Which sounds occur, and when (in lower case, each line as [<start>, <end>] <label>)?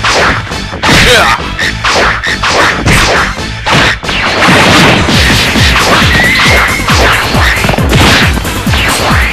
[0.00, 0.42] whoosh
[0.00, 9.32] music
[0.00, 9.32] video game sound
[0.83, 1.34] thwack
[1.00, 1.39] shout
[1.81, 2.22] whoosh
[2.39, 3.32] whoosh
[2.85, 3.33] thwack
[3.64, 3.92] thwack
[4.01, 5.05] sound effect
[5.06, 5.83] thwack
[5.74, 6.09] whoosh
[6.02, 6.86] sound effect
[6.34, 6.72] whoosh
[6.84, 7.22] whoosh
[7.34, 7.78] sound effect
[7.89, 8.31] thwack
[8.65, 9.32] sound effect